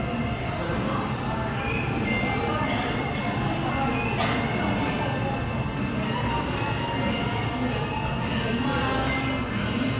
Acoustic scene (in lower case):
crowded indoor space